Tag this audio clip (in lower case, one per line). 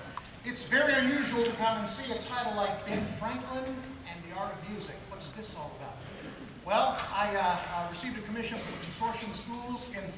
speech